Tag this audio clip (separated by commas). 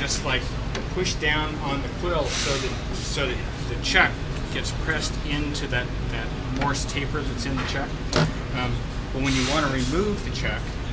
Speech